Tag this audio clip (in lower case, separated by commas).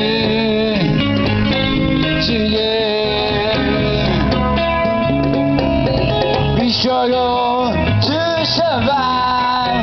music